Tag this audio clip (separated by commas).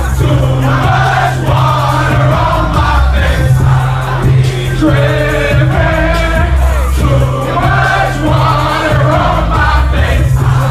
Music